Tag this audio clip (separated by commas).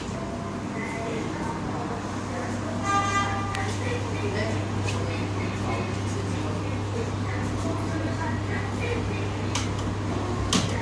Vehicle, Speech